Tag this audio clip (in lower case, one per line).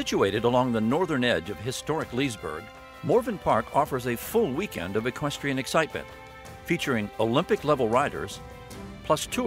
music
speech